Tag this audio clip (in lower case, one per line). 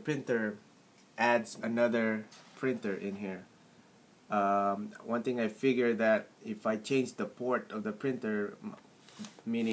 speech